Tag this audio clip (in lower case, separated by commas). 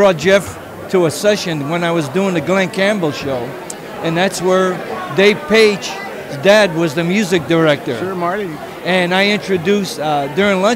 speech, inside a large room or hall